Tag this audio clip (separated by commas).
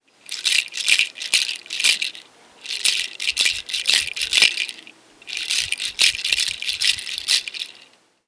Rattle